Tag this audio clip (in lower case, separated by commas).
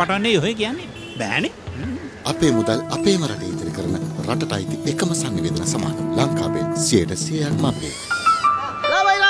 speech, music